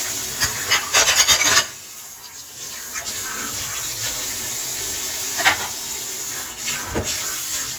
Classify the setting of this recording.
kitchen